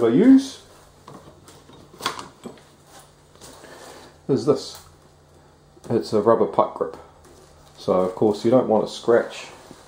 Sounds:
inside a small room, speech

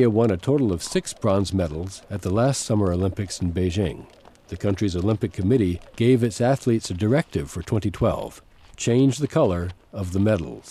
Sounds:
speech

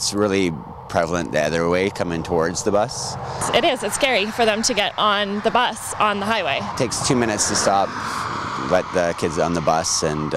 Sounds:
speech, vehicle

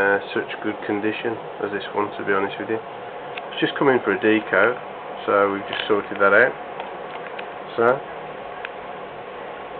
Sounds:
speech, radio

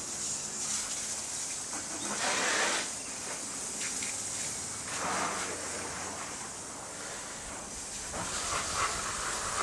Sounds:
bird

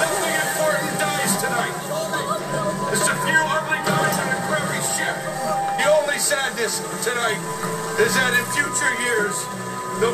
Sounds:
speech, music

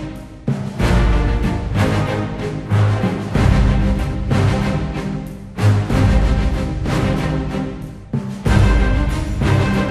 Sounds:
music

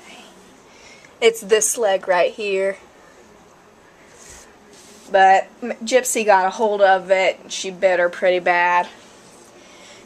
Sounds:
speech

